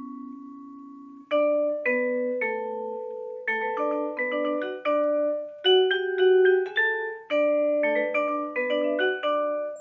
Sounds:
mallet percussion, marimba, glockenspiel, xylophone

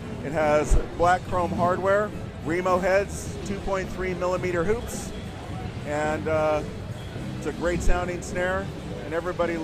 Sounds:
speech

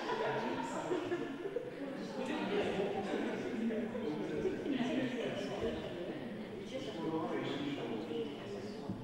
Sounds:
speech

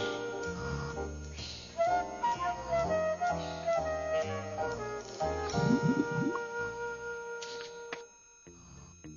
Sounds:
music

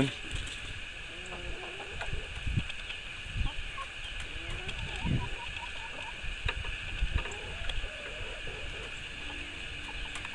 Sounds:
outside, rural or natural

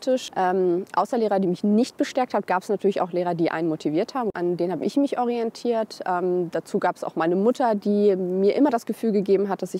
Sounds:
speech

